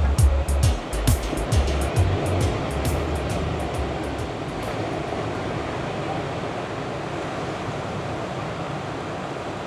Music is played while waves are in momentum